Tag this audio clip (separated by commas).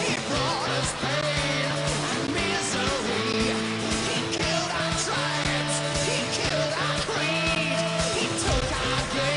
Music